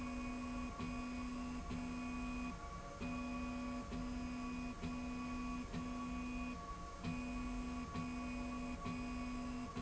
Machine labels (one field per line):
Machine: slide rail